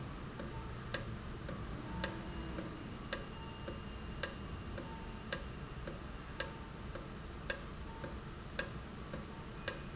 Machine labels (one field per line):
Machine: valve